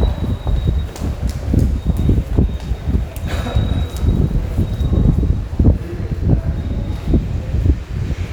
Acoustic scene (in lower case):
subway station